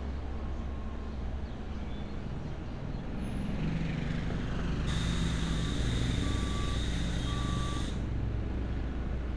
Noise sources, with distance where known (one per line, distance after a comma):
engine of unclear size, near
car horn, far
reverse beeper, near